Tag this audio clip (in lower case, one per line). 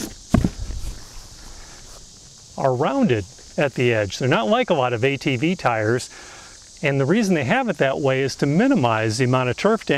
speech